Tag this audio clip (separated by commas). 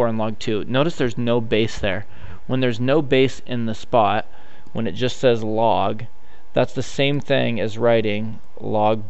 Speech